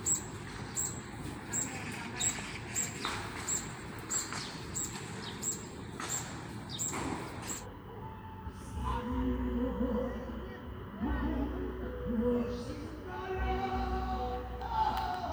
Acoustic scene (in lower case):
park